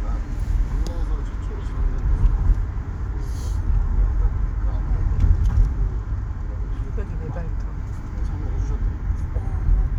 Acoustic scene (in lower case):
car